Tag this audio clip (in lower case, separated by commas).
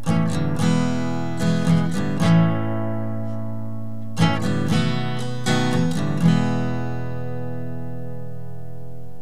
plucked string instrument, guitar, music, musical instrument, acoustic guitar